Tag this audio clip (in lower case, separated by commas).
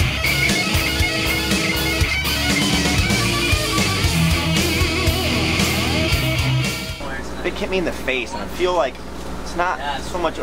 speech, inside a small room, music